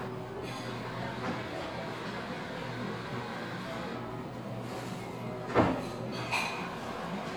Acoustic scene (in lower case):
cafe